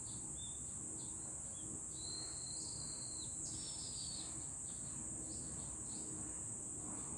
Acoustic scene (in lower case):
park